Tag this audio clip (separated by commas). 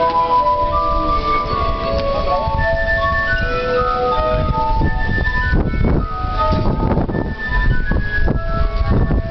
Independent music, Music